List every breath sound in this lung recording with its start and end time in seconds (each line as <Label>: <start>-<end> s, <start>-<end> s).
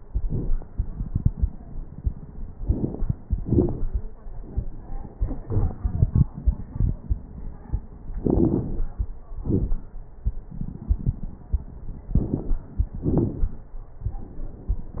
Inhalation: 2.53-3.13 s, 8.15-8.89 s, 12.07-12.66 s
Exhalation: 3.26-3.99 s, 9.39-9.98 s, 12.99-13.58 s
Crackles: 2.53-3.13 s, 3.26-3.99 s, 8.15-8.89 s, 9.39-9.98 s, 12.07-12.66 s, 12.99-13.58 s